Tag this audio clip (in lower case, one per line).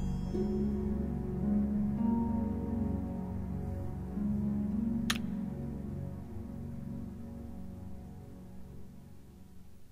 music
inside a small room